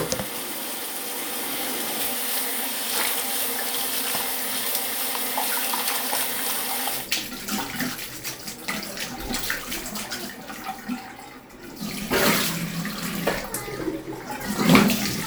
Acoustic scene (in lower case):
restroom